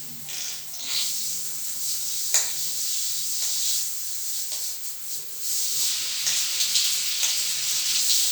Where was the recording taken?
in a restroom